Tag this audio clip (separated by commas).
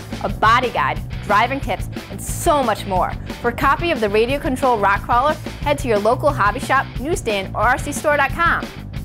Speech, Music